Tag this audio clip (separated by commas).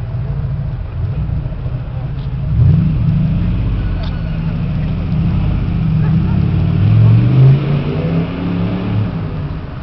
Speech